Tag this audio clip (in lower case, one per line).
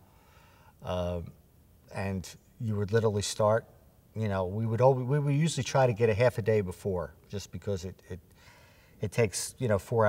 speech